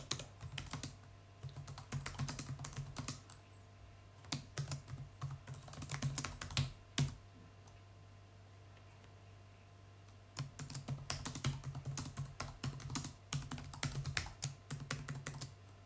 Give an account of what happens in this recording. I typed on the keyboard after a short break continued typing.